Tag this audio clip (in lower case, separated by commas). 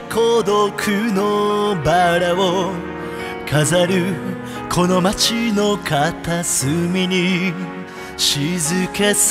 music